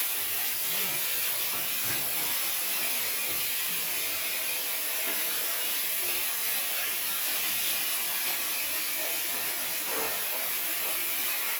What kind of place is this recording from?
restroom